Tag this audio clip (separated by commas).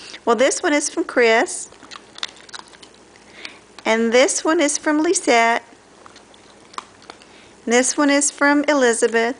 Speech